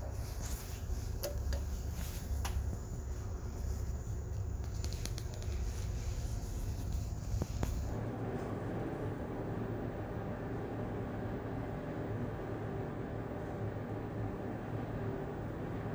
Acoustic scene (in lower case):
elevator